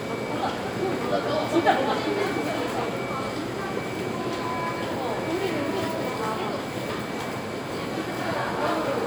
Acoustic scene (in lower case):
crowded indoor space